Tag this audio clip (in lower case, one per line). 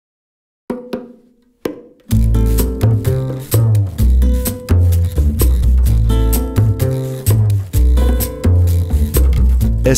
wood block
speech
music